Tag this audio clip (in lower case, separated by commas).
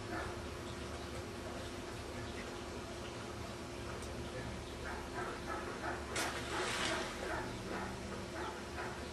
speech